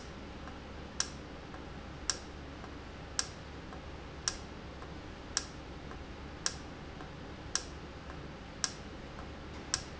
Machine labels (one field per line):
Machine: valve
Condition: normal